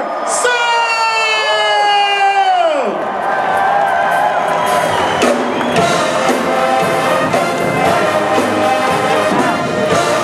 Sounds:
speech
music

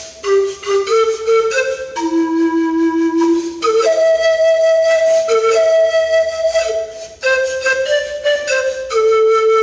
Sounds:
woodwind instrument
music

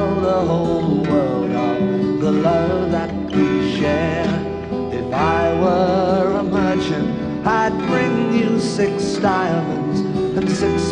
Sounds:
music

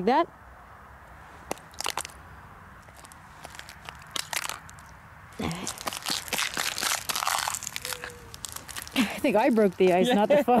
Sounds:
speech

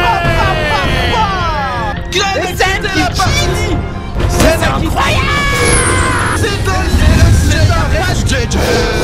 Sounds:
music
speech

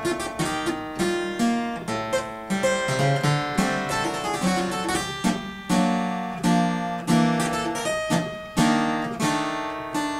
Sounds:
music

